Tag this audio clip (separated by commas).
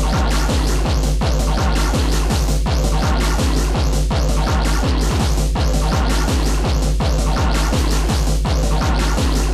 Drum machine, Music